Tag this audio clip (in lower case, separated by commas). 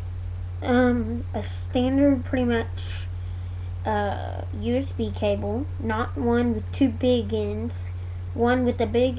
speech